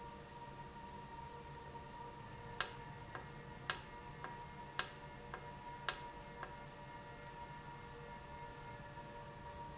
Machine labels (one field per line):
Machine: valve